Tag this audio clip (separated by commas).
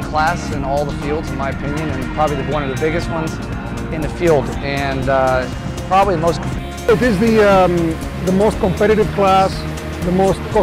Speech, Music